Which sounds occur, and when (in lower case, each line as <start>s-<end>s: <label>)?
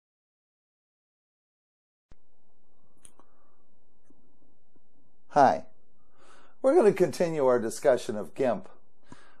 2.0s-9.4s: howl (wind)
2.0s-2.2s: generic impact sounds
2.7s-2.8s: beep
2.9s-3.2s: clicking
3.0s-3.1s: beep
4.0s-4.1s: generic impact sounds
4.2s-4.4s: generic impact sounds
4.7s-4.8s: generic impact sounds
5.2s-5.6s: man speaking
6.1s-6.5s: breathing
6.6s-8.7s: man speaking
9.0s-9.4s: breathing
9.0s-9.1s: generic impact sounds